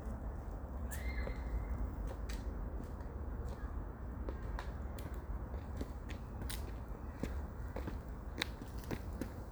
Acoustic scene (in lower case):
park